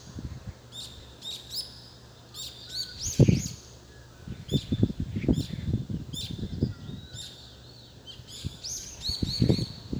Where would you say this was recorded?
in a park